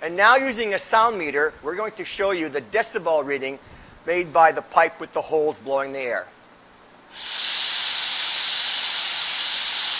A man talks, followed by a hiss of steam